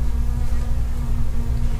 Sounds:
insect, wild animals, animal, buzz

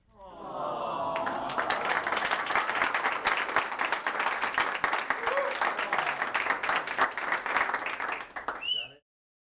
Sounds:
applause, human group actions

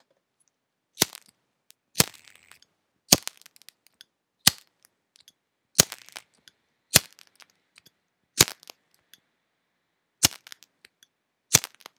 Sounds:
fire

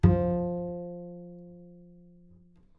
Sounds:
bowed string instrument, music, musical instrument

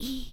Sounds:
whispering, human voice

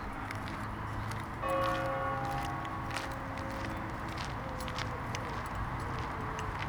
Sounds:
bell, footsteps

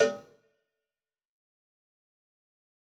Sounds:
bell, cowbell

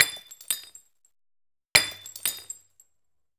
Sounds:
shatter, glass

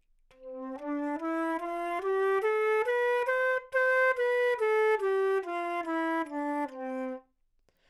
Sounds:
musical instrument, music, wind instrument

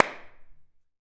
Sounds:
clapping, hands

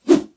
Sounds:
swoosh

